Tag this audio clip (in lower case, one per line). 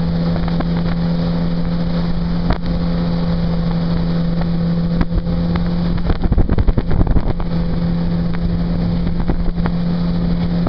motorboat
vehicle
boat